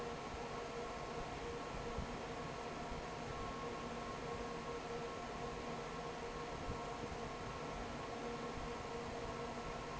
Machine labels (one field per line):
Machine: fan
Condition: normal